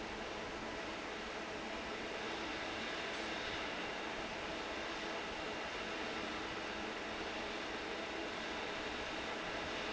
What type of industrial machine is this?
fan